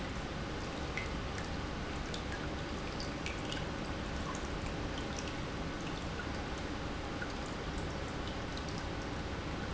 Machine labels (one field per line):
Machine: pump